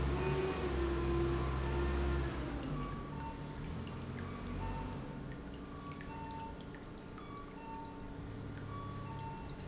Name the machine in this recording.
pump